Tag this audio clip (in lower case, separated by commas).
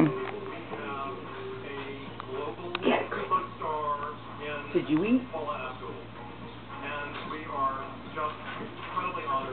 speech